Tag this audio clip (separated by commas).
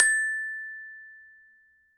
Glockenspiel, Musical instrument, Mallet percussion, Music, Percussion